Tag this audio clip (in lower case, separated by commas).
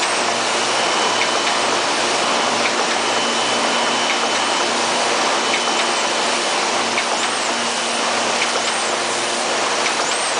printer